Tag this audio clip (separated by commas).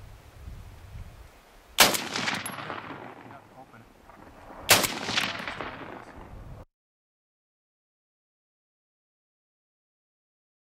machine gun shooting